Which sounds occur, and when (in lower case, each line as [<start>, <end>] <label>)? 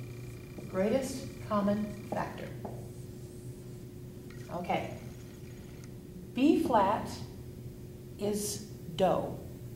[0.00, 9.75] mechanisms
[0.49, 0.61] tap
[0.70, 1.22] woman speaking
[1.43, 1.89] woman speaking
[1.58, 1.74] tap
[2.04, 2.17] tap
[2.08, 2.59] woman speaking
[2.57, 2.73] tap
[2.69, 3.95] writing
[4.45, 4.96] woman speaking
[5.77, 5.88] tick
[6.33, 7.22] woman speaking
[6.58, 6.73] tap
[8.18, 8.64] woman speaking
[8.93, 9.38] woman speaking